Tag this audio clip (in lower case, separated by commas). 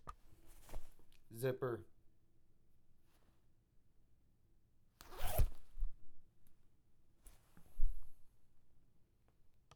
domestic sounds, zipper (clothing)